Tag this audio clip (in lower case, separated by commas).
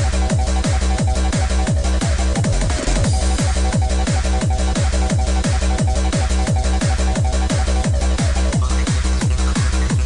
electronic music, techno, music